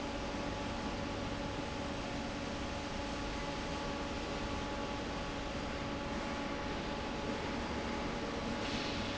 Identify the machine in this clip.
fan